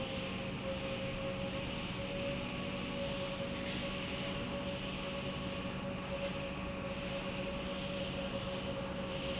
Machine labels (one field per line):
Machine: pump